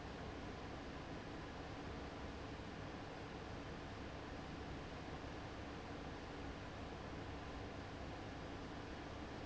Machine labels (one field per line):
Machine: fan